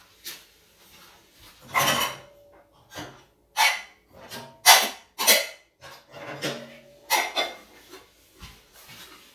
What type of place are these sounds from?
kitchen